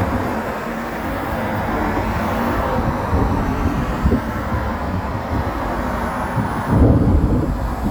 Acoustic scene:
street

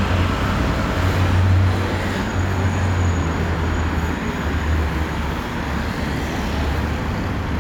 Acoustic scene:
street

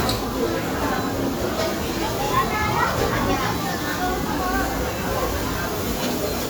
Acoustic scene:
restaurant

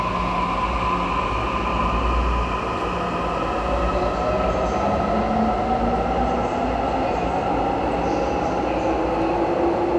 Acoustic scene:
subway station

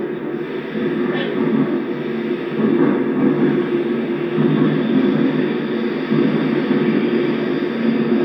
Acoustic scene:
subway train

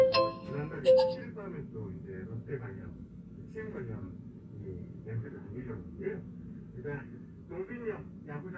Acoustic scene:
car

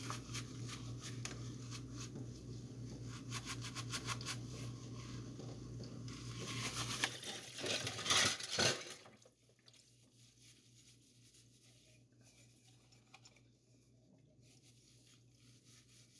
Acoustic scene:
kitchen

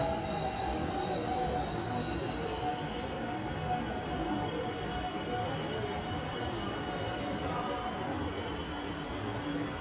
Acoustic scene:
subway station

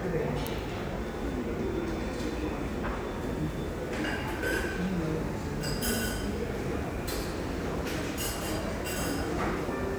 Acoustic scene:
crowded indoor space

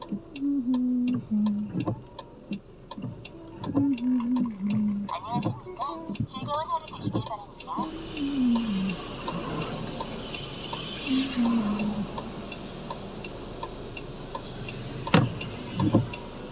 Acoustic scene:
car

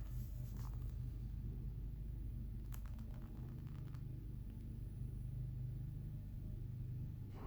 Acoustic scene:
elevator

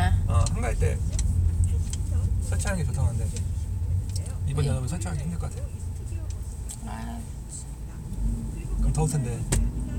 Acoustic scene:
car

